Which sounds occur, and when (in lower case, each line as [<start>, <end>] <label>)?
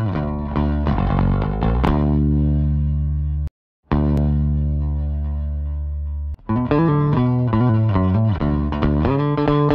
[0.00, 3.47] music
[3.83, 9.74] music
[4.12, 4.21] tick